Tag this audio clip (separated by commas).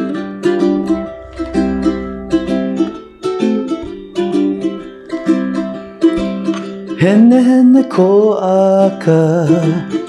Plucked string instrument, Guitar, Singing, Musical instrument, Music, Mandolin